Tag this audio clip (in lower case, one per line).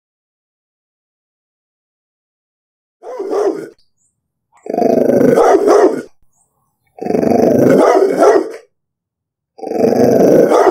dog growling